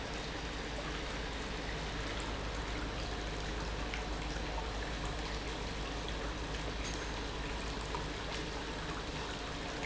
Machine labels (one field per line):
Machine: pump